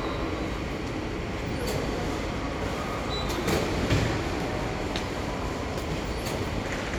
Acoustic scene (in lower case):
subway station